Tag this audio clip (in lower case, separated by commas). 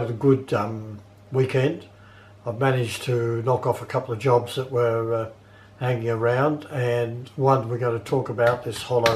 speech